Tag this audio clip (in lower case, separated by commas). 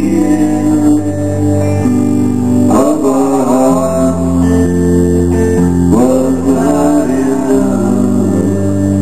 bass guitar, music, musical instrument, guitar